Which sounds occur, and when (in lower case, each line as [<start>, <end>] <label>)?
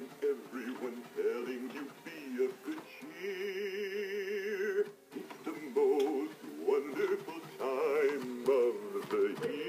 [0.00, 9.65] mechanisms
[5.11, 9.65] male singing
[9.34, 9.48] generic impact sounds